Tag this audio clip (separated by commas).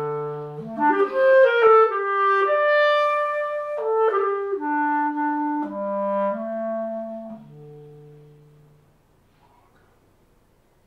Music, Clarinet